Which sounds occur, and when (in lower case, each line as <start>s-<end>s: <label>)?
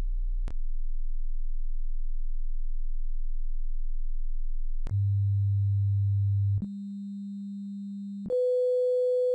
0.0s-9.3s: sine wave